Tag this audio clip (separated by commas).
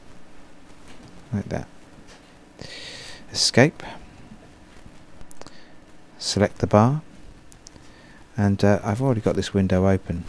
Speech